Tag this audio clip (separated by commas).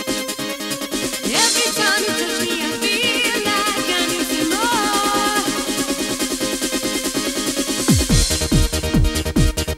Trance music